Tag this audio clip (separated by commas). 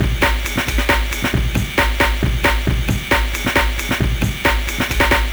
Musical instrument, Percussion, Drum kit, Music